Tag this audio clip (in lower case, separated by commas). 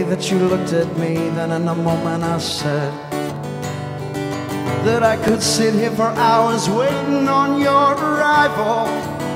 music